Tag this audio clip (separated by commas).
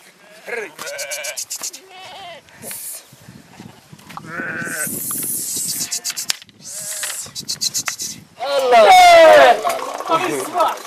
Sheep, Bleat, Speech